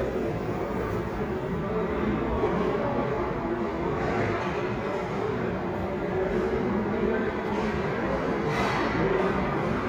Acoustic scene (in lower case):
restaurant